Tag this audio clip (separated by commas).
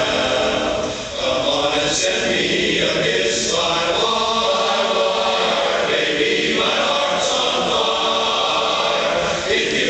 Music, Male singing, Choir, singing choir